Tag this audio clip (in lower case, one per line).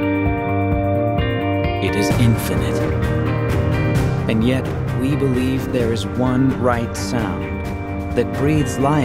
music
speech
tender music